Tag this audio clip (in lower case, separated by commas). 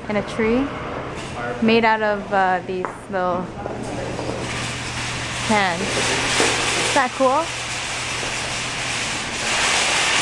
inside a public space, speech